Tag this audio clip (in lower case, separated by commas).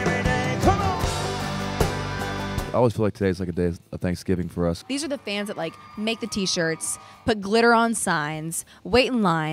speech, music